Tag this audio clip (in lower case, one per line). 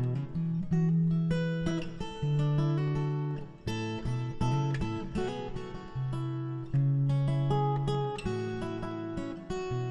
acoustic guitar
guitar
music
musical instrument